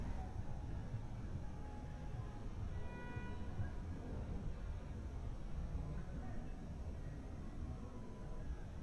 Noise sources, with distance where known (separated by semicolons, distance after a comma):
car horn